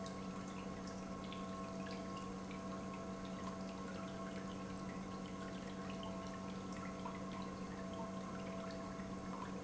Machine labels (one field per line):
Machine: pump